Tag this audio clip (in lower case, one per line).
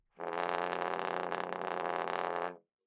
brass instrument
music
musical instrument